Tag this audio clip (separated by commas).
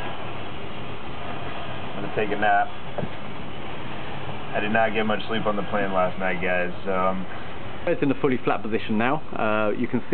Vehicle, Speech